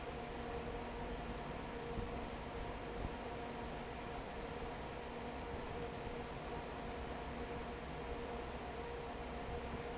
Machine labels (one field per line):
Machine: fan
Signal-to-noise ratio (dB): 6 dB